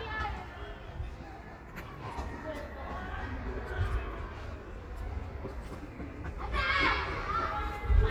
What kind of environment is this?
residential area